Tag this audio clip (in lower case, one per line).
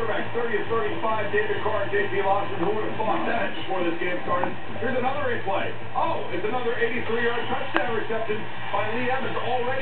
music
speech